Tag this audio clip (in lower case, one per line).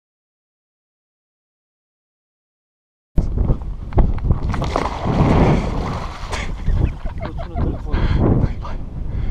speech